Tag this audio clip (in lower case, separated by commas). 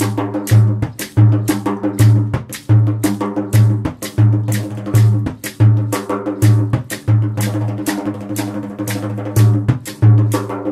percussion, drum